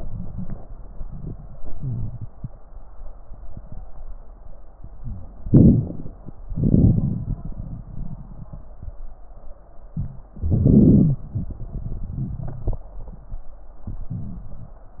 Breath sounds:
1.63-2.33 s: wheeze
4.92-5.24 s: wheeze
5.46-6.14 s: crackles
5.46-6.15 s: inhalation
6.45-9.00 s: exhalation
10.30-11.23 s: inhalation
10.66-11.23 s: wheeze

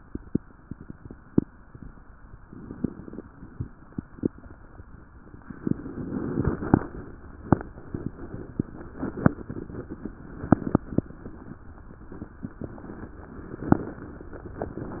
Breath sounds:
2.39-3.27 s: inhalation
2.39-3.27 s: crackles
6.22-7.10 s: inhalation
6.22-7.10 s: crackles

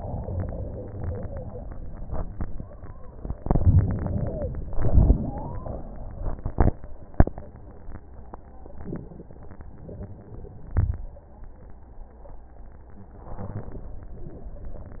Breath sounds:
0.00-2.05 s: inhalation
2.17-3.47 s: exhalation
2.17-3.47 s: wheeze
3.37-4.75 s: inhalation
4.76-6.33 s: exhalation
4.76-6.33 s: wheeze
13.19-14.26 s: inhalation

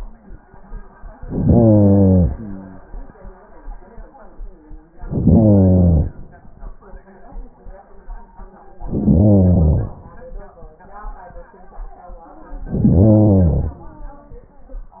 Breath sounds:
1.18-2.32 s: inhalation
2.25-3.15 s: exhalation
4.88-6.25 s: inhalation
8.69-10.06 s: inhalation
12.51-13.88 s: inhalation

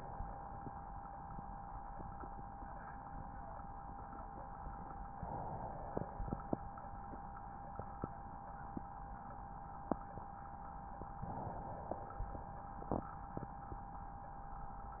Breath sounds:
5.10-6.57 s: inhalation
11.21-12.68 s: inhalation

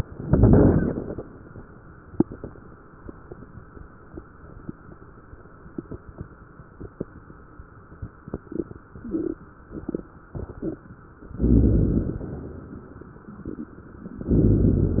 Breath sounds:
0.00-1.34 s: inhalation
11.27-12.92 s: inhalation
14.08-15.00 s: inhalation

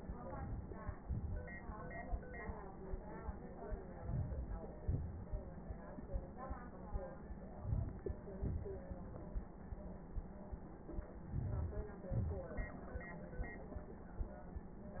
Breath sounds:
4.04-4.61 s: inhalation
4.82-5.31 s: exhalation
7.61-8.10 s: inhalation
8.39-8.88 s: exhalation
11.42-11.92 s: inhalation
12.14-12.64 s: exhalation

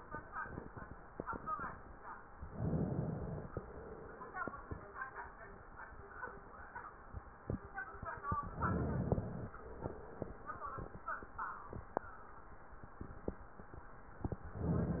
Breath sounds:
2.50-3.64 s: inhalation
3.65-4.62 s: exhalation
8.42-9.56 s: inhalation
9.59-10.55 s: exhalation
14.58-15.00 s: inhalation

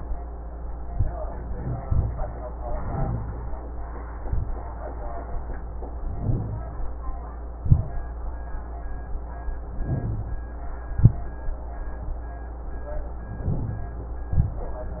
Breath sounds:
1.49-2.45 s: exhalation
1.57-1.83 s: wheeze
2.65-3.53 s: inhalation
2.90-3.33 s: wheeze
4.15-4.71 s: exhalation
6.01-6.98 s: inhalation
6.22-6.65 s: wheeze
7.63-8.20 s: exhalation
9.62-10.47 s: inhalation
9.87-10.29 s: wheeze
10.89-11.42 s: exhalation
13.24-14.18 s: inhalation
13.49-13.92 s: wheeze
14.31-14.87 s: exhalation

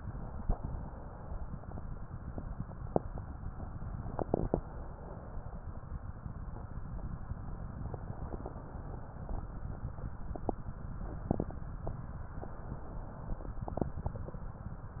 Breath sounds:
0.45-1.75 s: inhalation
4.54-5.58 s: inhalation
8.10-9.40 s: inhalation
12.46-13.51 s: inhalation

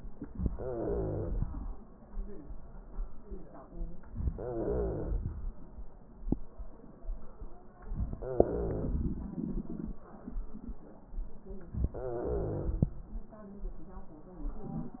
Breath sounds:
0.48-1.33 s: wheeze
4.28-5.14 s: wheeze
8.22-8.93 s: wheeze
11.98-12.88 s: wheeze

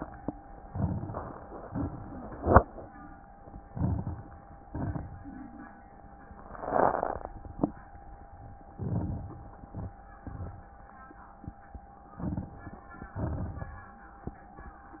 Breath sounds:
0.58-1.59 s: crackles
0.64-1.65 s: inhalation
1.65-2.65 s: exhalation
1.65-2.65 s: crackles
3.63-4.64 s: inhalation
3.63-4.64 s: crackles
4.71-5.72 s: exhalation
4.71-5.72 s: crackles
8.74-9.75 s: inhalation
8.74-9.75 s: crackles
9.72-10.73 s: exhalation
9.78-10.79 s: crackles
12.12-13.12 s: inhalation
12.12-13.12 s: crackles
13.18-14.19 s: exhalation
13.18-14.19 s: crackles

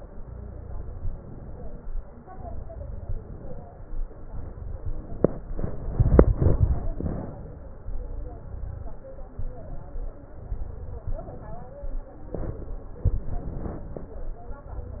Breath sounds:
0.15-0.72 s: exhalation
0.15-0.72 s: crackles
0.95-1.86 s: inhalation
2.22-2.79 s: exhalation
2.22-2.79 s: crackles
3.00-3.67 s: inhalation
4.26-4.80 s: exhalation
4.85-5.55 s: inhalation
6.98-7.75 s: exhalation
6.98-7.75 s: crackles
7.85-8.44 s: inhalation
8.44-9.03 s: exhalation
8.44-9.03 s: crackles
9.39-10.09 s: inhalation
10.38-11.06 s: exhalation
10.38-11.06 s: crackles
11.06-11.82 s: inhalation
12.30-13.09 s: crackles
12.33-13.09 s: exhalation
13.09-14.12 s: inhalation
14.61-15.00 s: exhalation
14.61-15.00 s: crackles

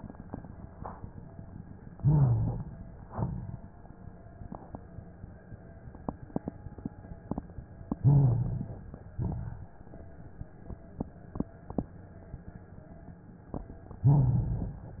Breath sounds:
1.96-2.89 s: inhalation
1.96-2.89 s: rhonchi
3.07-3.61 s: exhalation
3.07-3.61 s: crackles
8.03-8.96 s: inhalation
8.03-8.96 s: rhonchi
9.18-9.72 s: exhalation
9.18-9.72 s: crackles
14.06-14.99 s: inhalation
14.06-14.99 s: rhonchi

